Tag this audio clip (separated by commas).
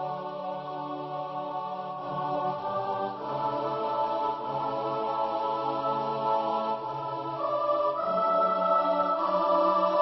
Music